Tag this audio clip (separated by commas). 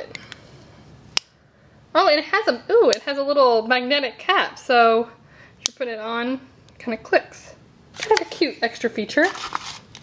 Speech